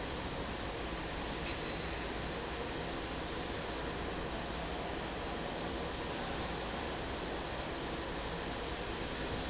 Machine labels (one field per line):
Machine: fan